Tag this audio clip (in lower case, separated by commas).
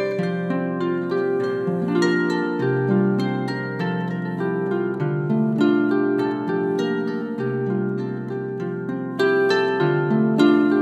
wedding music, music